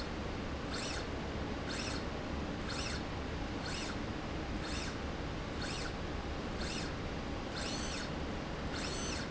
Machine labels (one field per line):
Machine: slide rail